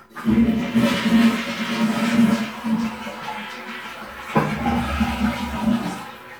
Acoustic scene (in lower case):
restroom